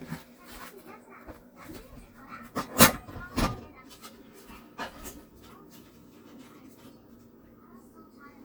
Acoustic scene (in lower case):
kitchen